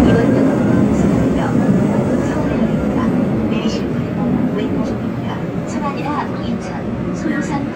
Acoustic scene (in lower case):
subway train